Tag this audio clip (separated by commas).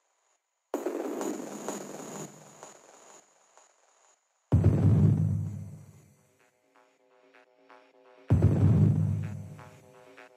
Music, Electronic music